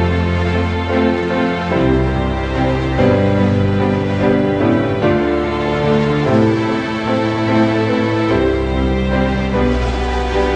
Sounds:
music

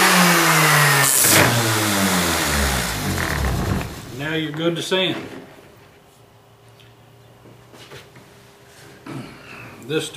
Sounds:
speech, tools

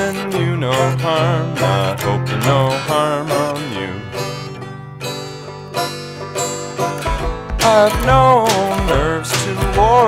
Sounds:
mandolin, music

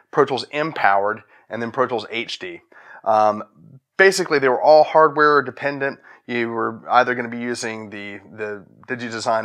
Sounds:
speech

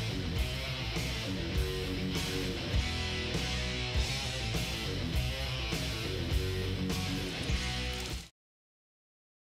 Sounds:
music

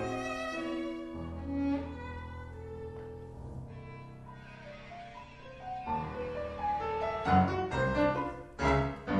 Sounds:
musical instrument, music, fiddle

